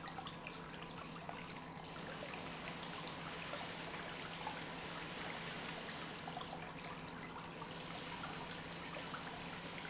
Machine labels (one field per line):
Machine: pump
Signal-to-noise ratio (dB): 6 dB